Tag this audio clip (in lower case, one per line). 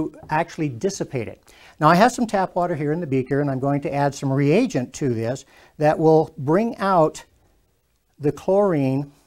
speech